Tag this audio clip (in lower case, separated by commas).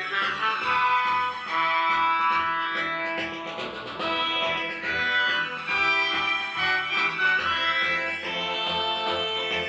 video game music, music